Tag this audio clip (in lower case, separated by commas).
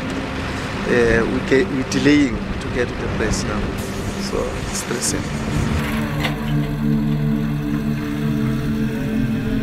speech, outside, rural or natural, music